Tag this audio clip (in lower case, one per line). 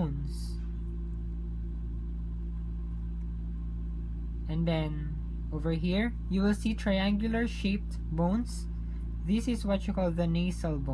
speech